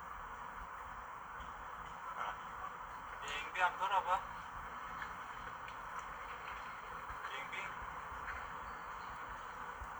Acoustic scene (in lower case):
park